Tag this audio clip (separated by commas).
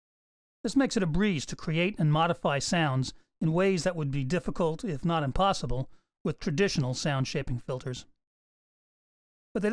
Speech